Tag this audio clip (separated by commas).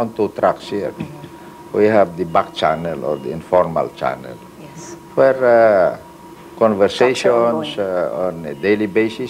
Speech